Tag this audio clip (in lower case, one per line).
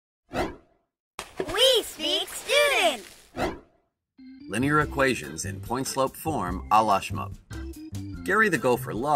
speech